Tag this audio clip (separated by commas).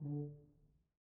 Brass instrument, Musical instrument, Music